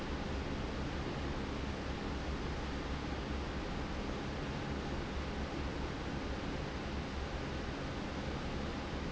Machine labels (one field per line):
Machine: fan